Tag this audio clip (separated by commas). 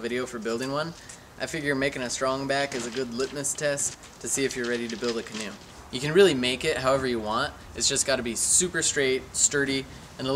Speech